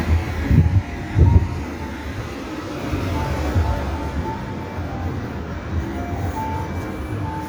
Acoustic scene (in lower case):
street